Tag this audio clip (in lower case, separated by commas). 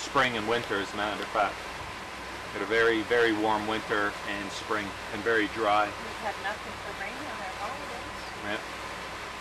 speech, vehicle, water vehicle